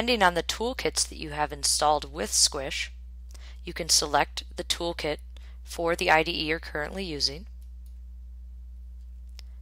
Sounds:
speech

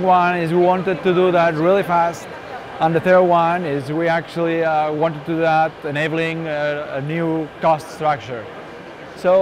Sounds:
speech

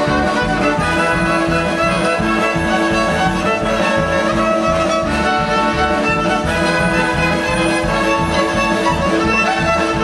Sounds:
music, violin, musical instrument

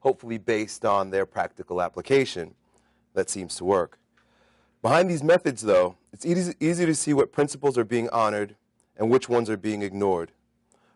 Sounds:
speech, male speech, monologue

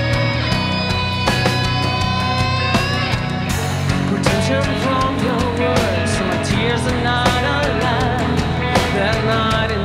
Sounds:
progressive rock, music, singing, heavy metal

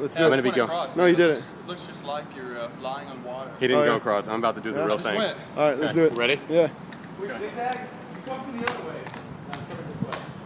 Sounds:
vehicle, bicycle, speech

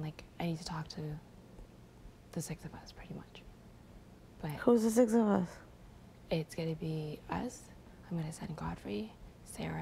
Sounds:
speech

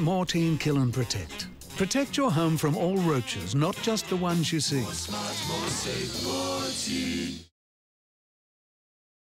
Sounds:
speech, music

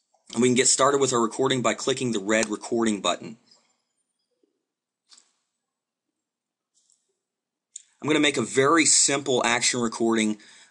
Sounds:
clicking, speech

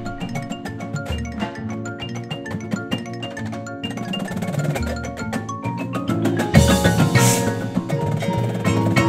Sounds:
music

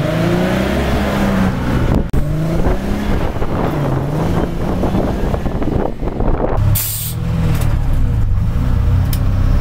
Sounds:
accelerating, heavy engine (low frequency), vehicle

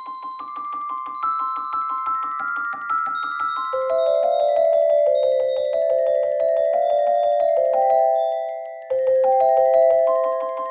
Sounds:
mallet percussion, glockenspiel

